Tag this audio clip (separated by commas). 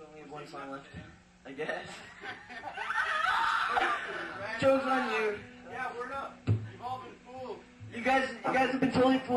Speech, Screaming